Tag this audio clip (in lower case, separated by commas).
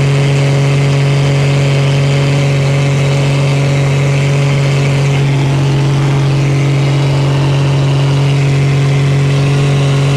vehicle, outside, rural or natural, aircraft